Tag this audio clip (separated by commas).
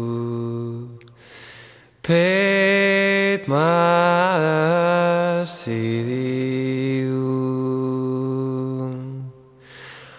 Mantra